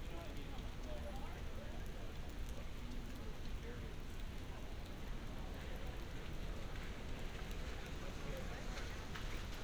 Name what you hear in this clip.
person or small group talking